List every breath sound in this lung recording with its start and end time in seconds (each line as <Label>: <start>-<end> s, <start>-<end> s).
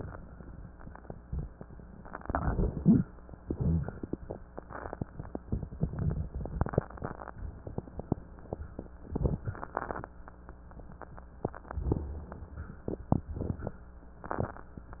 Inhalation: 2.22-3.00 s
Exhalation: 3.47-3.93 s
Crackles: 2.22-3.00 s, 3.47-3.93 s